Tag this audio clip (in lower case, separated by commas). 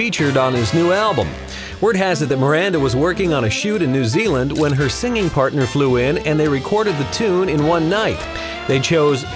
speech, music